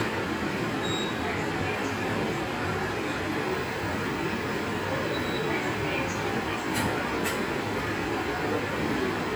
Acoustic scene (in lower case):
subway station